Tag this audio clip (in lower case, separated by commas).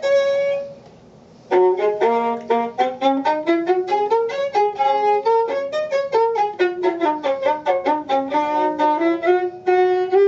violin, bowed string instrument